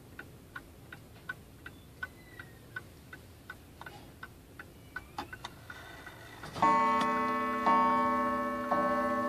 The ticking and chiming of a clock